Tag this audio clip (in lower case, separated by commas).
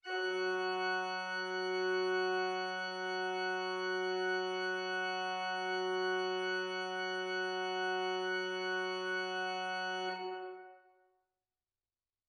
musical instrument, music, keyboard (musical), organ